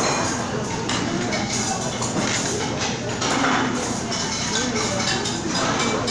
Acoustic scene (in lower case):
crowded indoor space